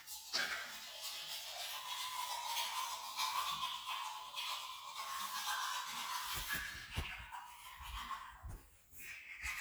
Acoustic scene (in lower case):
restroom